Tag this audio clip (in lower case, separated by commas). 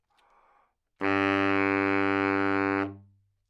music, woodwind instrument, musical instrument